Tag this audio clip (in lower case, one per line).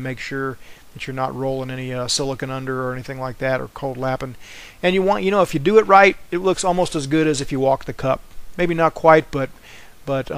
arc welding